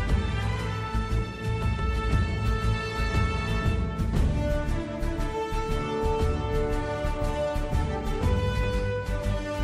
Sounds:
music

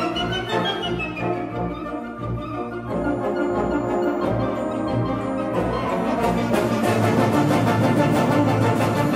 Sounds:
music, organ

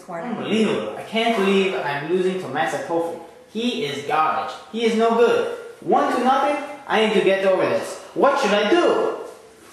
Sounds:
speech

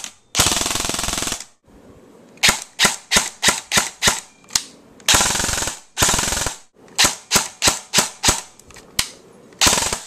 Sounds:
machine gun shooting, machine gun, gunshot

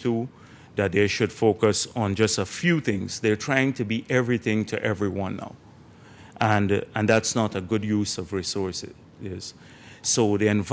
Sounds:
male speech, speech

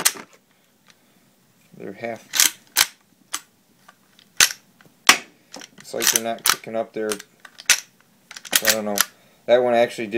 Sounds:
speech, inside a small room

